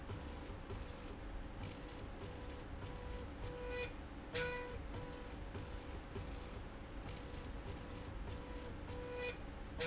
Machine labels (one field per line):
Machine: slide rail